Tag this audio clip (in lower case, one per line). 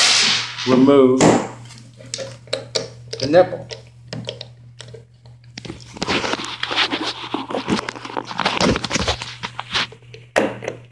speech